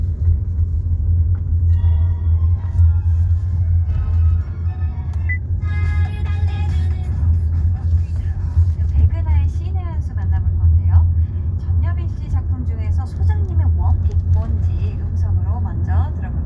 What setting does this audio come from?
car